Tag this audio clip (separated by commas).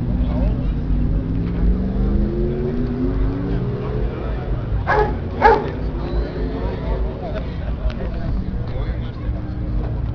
Engine, Accelerating, Car, Speech, Vehicle